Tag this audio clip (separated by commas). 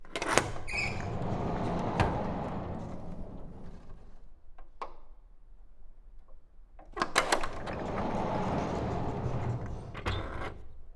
Door, Domestic sounds, Sliding door